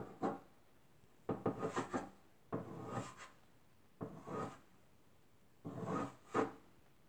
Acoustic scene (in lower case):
kitchen